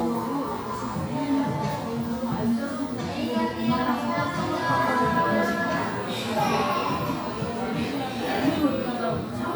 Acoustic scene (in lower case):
crowded indoor space